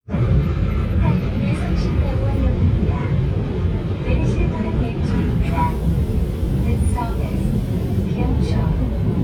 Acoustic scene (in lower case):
subway train